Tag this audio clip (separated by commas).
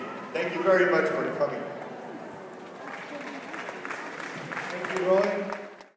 Human voice, Speech